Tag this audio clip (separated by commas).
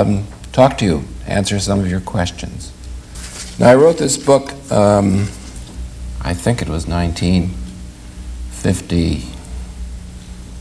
Speech